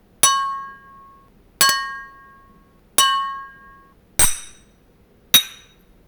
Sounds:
glass, clink

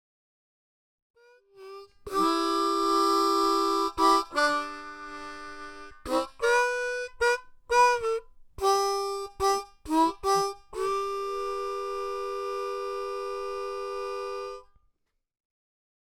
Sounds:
musical instrument, music, harmonica

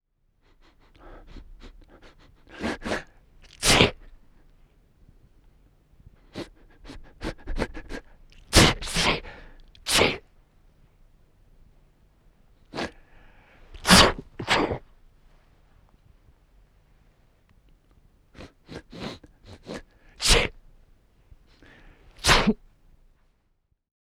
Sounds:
respiratory sounds, sneeze

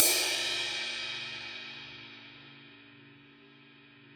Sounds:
percussion, musical instrument, cymbal, crash cymbal, music

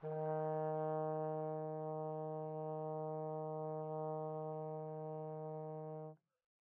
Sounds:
musical instrument, brass instrument, music

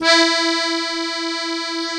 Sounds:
musical instrument, accordion, music

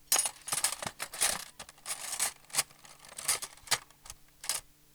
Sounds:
domestic sounds, silverware

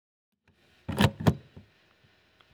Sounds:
car, motor vehicle (road), vehicle

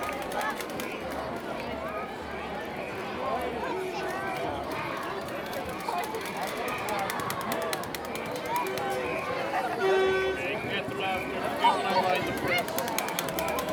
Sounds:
crowd, human group actions

